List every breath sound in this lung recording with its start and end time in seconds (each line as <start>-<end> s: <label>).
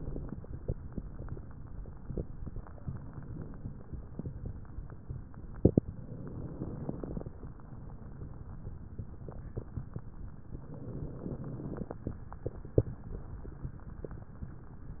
5.81-7.40 s: inhalation
5.81-7.40 s: crackles
10.46-12.04 s: inhalation
10.46-12.04 s: crackles